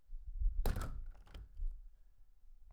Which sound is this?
window closing